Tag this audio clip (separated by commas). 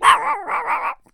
pets, Dog, Animal